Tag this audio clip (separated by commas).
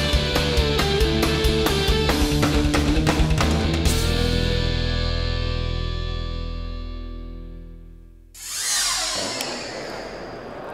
Progressive rock, Music